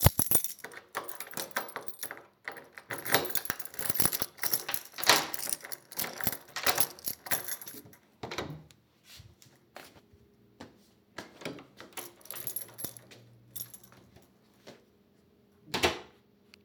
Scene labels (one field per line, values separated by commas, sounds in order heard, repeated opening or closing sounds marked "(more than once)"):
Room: hallway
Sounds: keys, door